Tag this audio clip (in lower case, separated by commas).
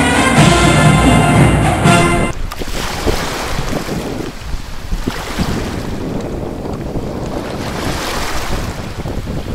wind noise (microphone), sailboat, water vehicle, wind, surf